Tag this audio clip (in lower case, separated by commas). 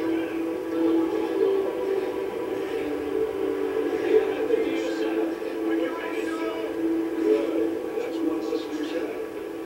television